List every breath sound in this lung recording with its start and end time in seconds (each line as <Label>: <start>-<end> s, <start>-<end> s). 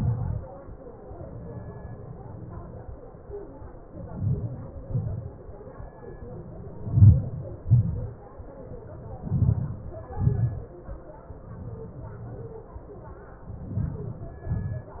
Inhalation: 4.12-4.53 s, 6.94-7.41 s, 9.29-9.83 s, 13.74-14.39 s
Exhalation: 0.00-0.41 s, 4.92-5.33 s, 7.73-8.16 s, 10.19-10.60 s, 14.54-15.00 s
Crackles: 0.00-0.44 s, 4.12-4.67 s, 4.83-5.30 s, 6.95-7.38 s, 9.26-9.70 s, 10.12-10.55 s